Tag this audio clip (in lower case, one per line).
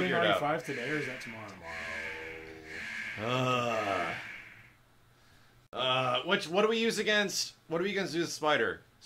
speech